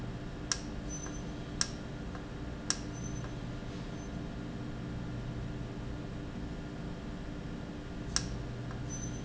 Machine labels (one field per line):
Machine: valve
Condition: normal